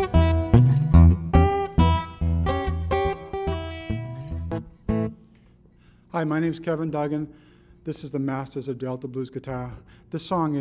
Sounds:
guitar, musical instrument, plucked string instrument, strum, speech, acoustic guitar, music

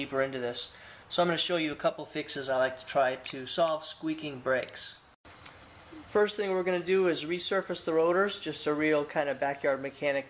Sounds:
speech

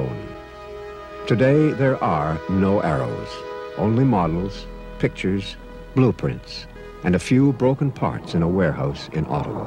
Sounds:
speech

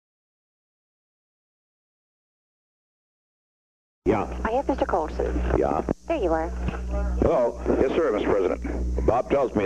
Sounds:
speech

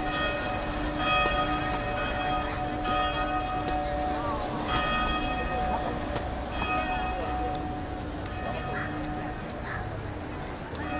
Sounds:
church bell ringing

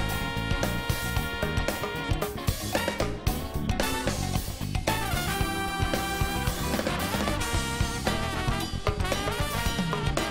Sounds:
musical instrument, drum kit, drum, playing drum kit, music

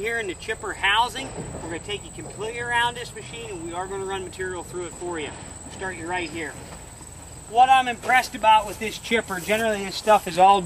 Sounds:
speech

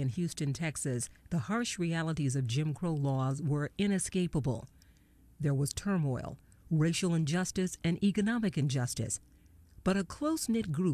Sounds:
speech

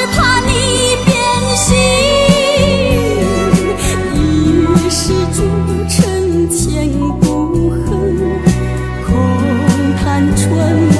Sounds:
music

